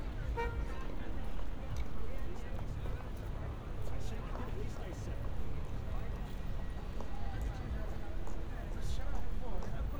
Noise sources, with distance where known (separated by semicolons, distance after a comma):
car horn, near; person or small group talking